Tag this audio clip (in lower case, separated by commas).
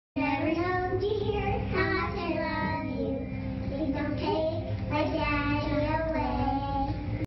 child singing